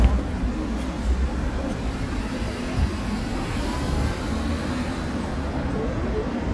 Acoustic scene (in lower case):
street